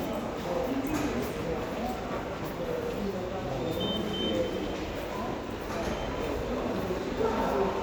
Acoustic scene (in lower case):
subway station